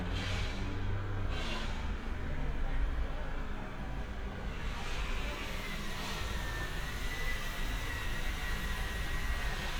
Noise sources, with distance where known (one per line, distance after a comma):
unidentified impact machinery, near